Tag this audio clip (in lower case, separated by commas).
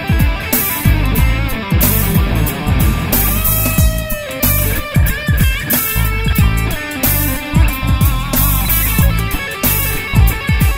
guitar, strum, electric guitar, plucked string instrument, musical instrument, music